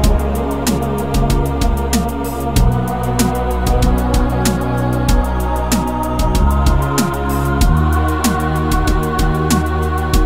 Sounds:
Music

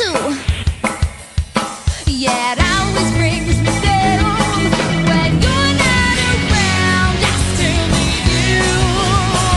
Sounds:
Rock music, Music

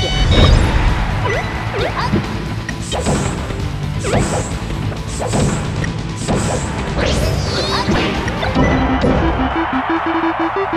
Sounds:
thwack

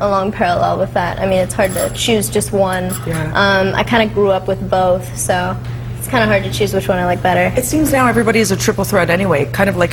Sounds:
Speech, Television

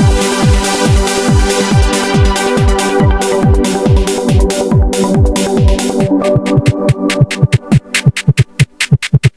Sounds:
Electric piano, playing piano, Piano, Keyboard (musical)

